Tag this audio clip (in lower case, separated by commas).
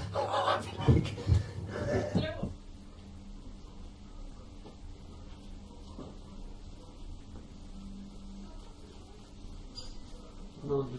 speech, pets